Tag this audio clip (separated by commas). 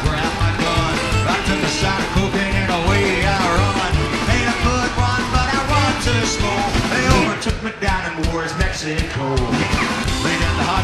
Singing, Rock and roll